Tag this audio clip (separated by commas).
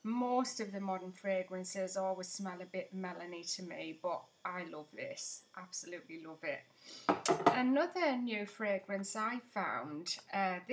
Speech